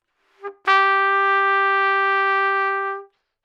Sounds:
trumpet
musical instrument
music
brass instrument

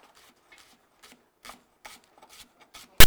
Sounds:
domestic sounds

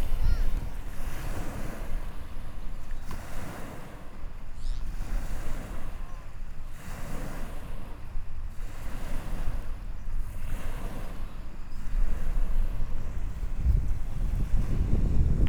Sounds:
ocean
water

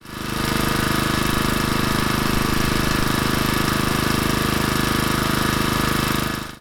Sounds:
idling
engine

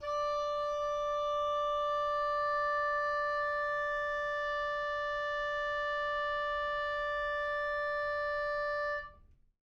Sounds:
musical instrument
music
woodwind instrument

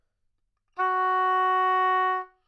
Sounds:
music
musical instrument
woodwind instrument

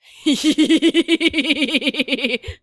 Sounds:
human voice
laughter

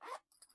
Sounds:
domestic sounds
zipper (clothing)

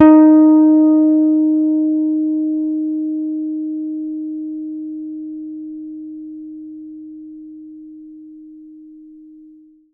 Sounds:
plucked string instrument
guitar
bass guitar
musical instrument
music

